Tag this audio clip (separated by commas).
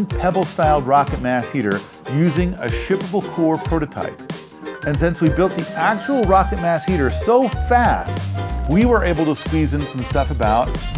Speech, Music